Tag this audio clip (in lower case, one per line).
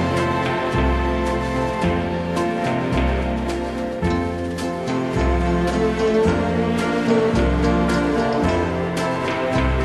music